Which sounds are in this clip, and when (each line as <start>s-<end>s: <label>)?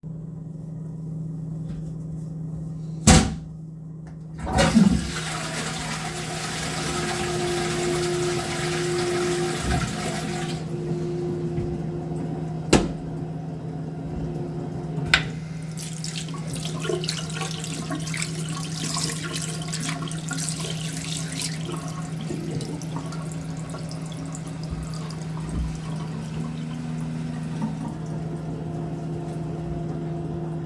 4.3s-12.0s: toilet flushing
15.0s-28.9s: running water